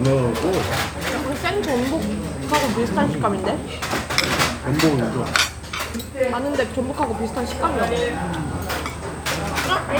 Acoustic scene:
restaurant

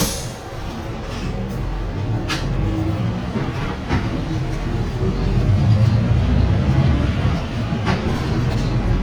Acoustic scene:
bus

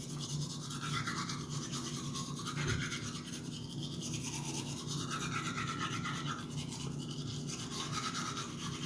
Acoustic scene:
restroom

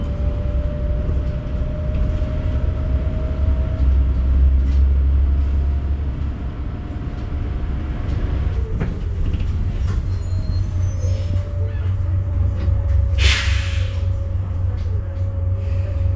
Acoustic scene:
bus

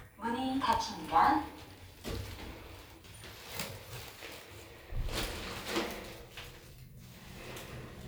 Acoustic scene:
elevator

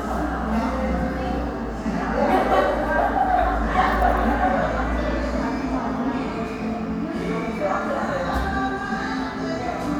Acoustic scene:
crowded indoor space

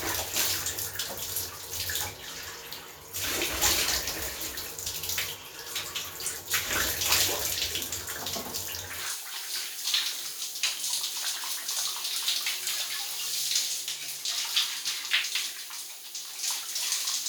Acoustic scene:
restroom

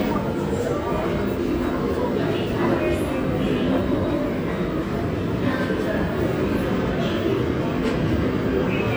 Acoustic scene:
subway station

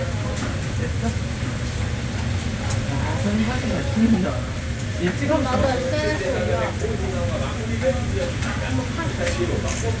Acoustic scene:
restaurant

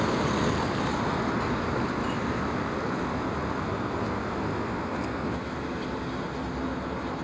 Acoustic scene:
street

